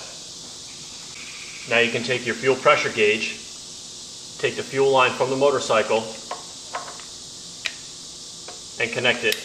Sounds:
speech

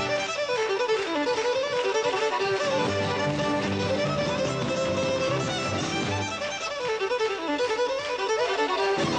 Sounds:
music

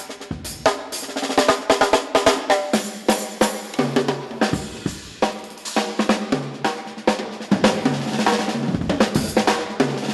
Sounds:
music
drum
bass drum
drum kit
musical instrument

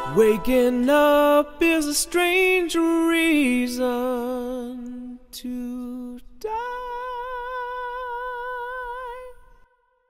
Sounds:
music

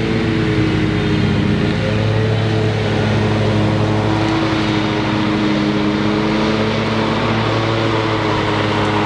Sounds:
lawn mowing

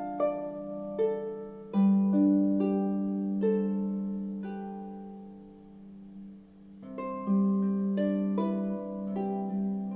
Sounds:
music
harp

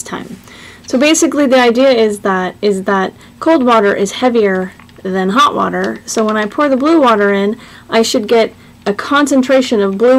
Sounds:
speech

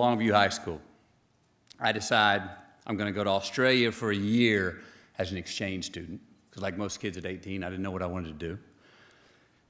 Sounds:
monologue
speech
male speech

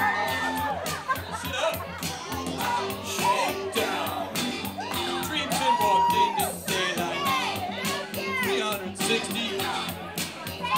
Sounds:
male singing
music

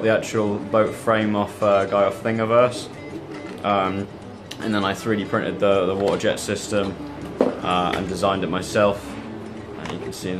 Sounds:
speech
music

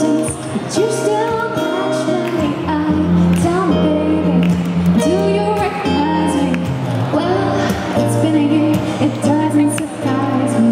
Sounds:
female singing
speech
music

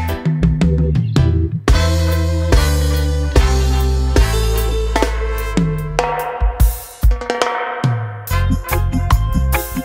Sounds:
playing bass drum

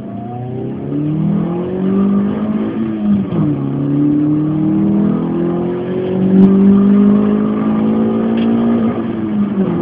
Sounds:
outside, urban or man-made

